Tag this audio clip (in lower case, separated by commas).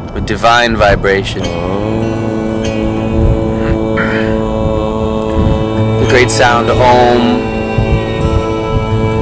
speech, mantra, music